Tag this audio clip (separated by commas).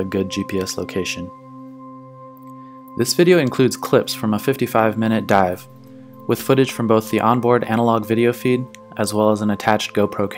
Music, Speech